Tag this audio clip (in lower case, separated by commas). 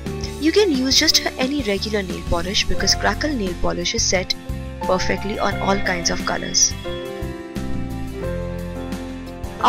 music, speech